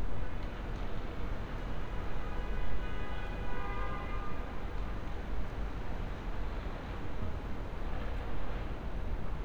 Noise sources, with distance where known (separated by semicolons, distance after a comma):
car horn, far